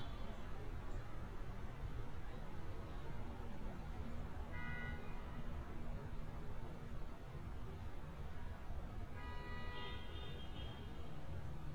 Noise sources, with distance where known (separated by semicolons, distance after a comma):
medium-sounding engine, far; car horn, far; unidentified human voice, far